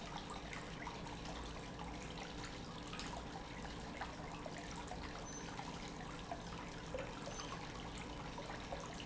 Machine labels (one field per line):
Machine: pump